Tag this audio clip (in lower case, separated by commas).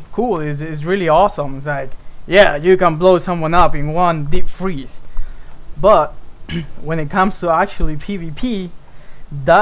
speech